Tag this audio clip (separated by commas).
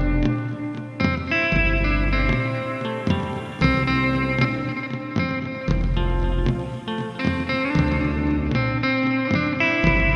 Electric guitar, Music, Musical instrument, Guitar